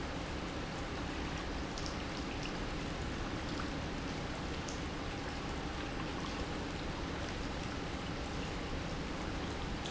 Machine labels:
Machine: pump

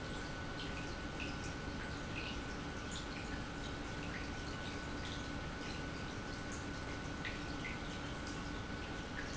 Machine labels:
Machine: pump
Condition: normal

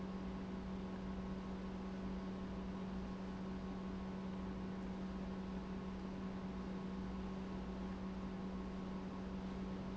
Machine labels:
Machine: pump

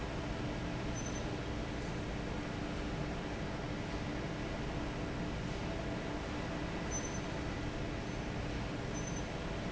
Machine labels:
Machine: fan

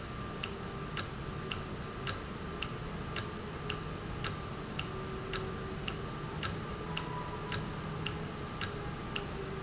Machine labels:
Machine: valve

